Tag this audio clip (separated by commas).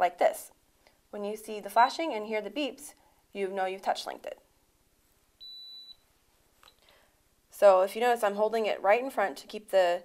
Speech, inside a small room